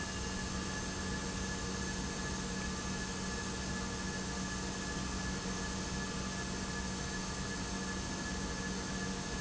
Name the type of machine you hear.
pump